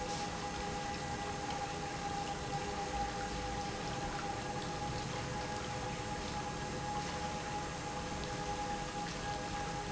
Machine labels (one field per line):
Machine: pump